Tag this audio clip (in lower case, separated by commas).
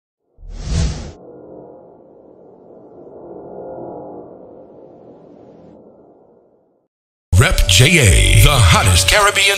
speech